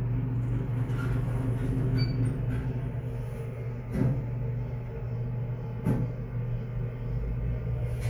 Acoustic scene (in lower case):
elevator